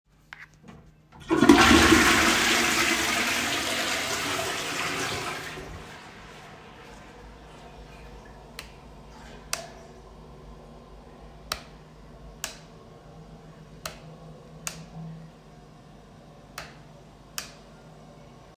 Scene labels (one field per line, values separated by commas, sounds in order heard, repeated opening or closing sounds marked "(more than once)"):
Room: lavatory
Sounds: toilet flushing, light switch